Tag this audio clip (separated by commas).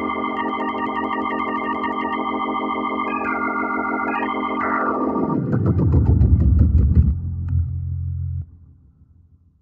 Piano, Electric piano, Keyboard (musical)